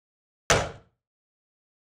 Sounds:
explosion
gunfire

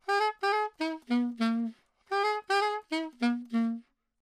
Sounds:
musical instrument
music
woodwind instrument

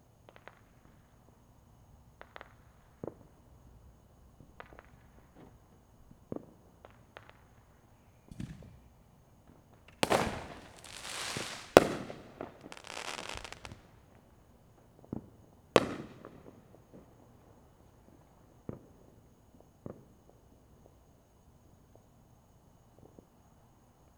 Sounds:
fireworks
explosion

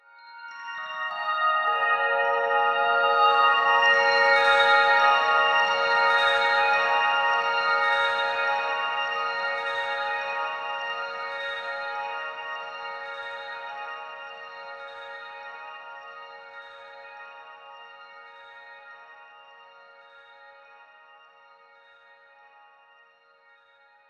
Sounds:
piano
musical instrument
keyboard (musical)
music

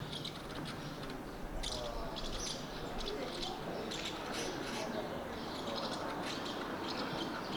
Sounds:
wild animals
animal
bird

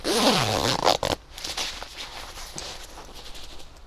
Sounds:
zipper (clothing)
home sounds

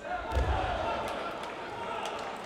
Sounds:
cheering
human group actions

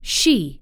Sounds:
speech
human voice
woman speaking

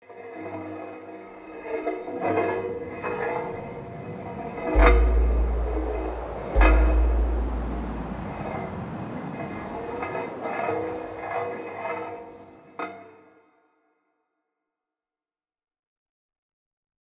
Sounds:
wind

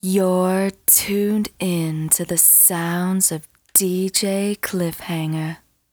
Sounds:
woman speaking
speech
human voice

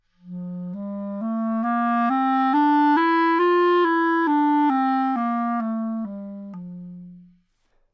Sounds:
music
woodwind instrument
musical instrument

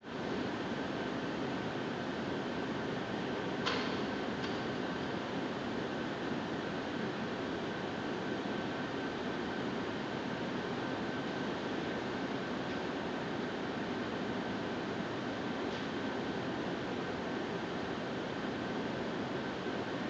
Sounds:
mechanisms

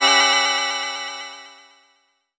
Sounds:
organ
music
keyboard (musical)
musical instrument

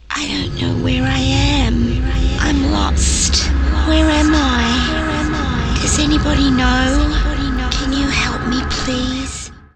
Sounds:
human voice

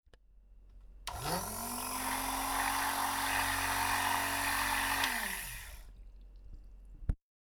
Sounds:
home sounds

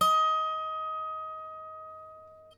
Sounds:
musical instrument
harp
music

